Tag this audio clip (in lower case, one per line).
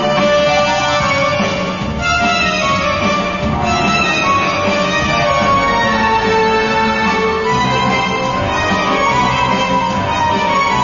background music
music